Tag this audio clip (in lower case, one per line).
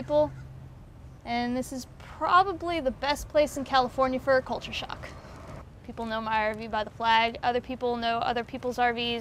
speech